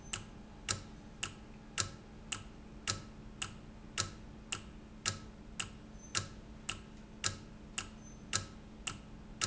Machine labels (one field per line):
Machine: valve